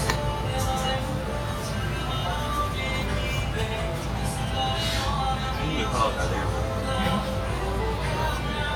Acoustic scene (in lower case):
restaurant